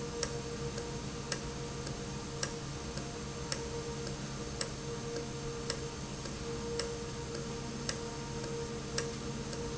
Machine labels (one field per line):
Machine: valve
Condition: normal